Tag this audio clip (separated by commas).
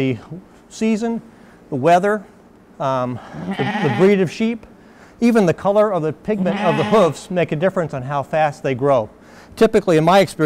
Sheep, Speech, Bleat